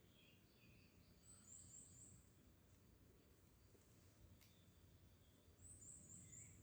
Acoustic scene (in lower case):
park